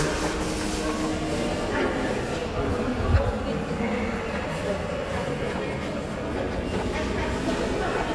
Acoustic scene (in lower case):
crowded indoor space